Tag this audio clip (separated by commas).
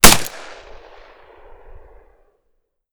Gunshot, Explosion